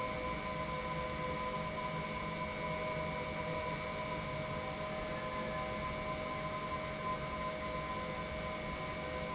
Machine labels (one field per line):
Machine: pump